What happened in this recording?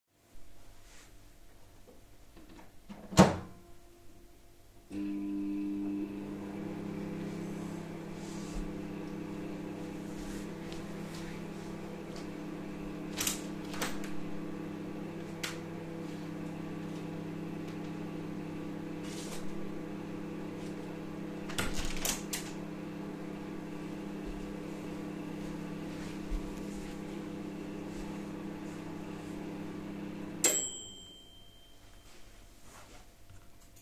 I opened the microwave, put the dish, turned it on, I opened the window then closed it